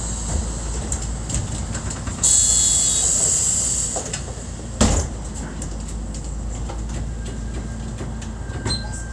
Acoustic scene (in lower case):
bus